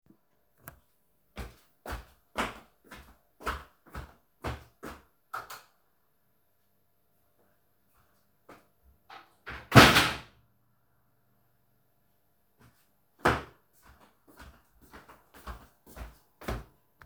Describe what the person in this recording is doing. I walked across the room and turned off the light. Then I opened the wardrobe and closed it again. After that I walked back to the original place